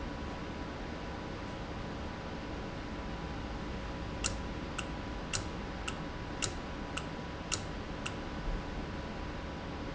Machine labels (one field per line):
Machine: valve